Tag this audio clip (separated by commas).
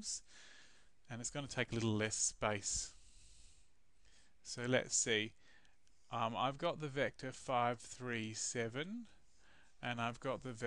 Speech